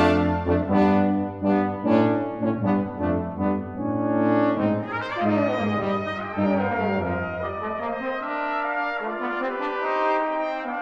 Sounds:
brass instrument, music

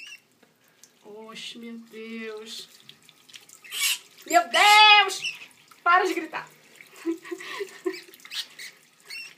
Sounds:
people screaming

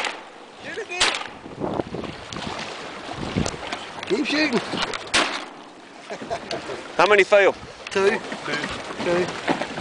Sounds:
speech

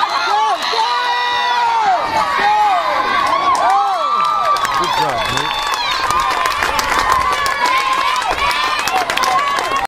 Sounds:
speech

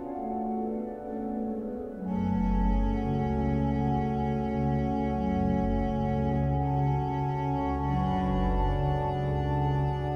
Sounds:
music

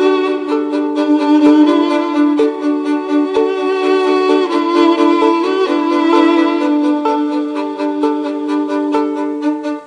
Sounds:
musical instrument, fiddle, music

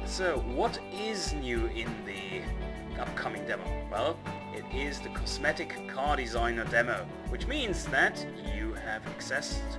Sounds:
speech, music

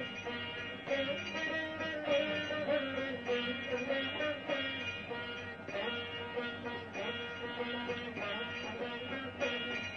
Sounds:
music

